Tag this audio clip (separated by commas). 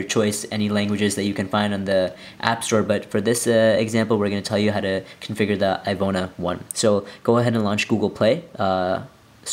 Speech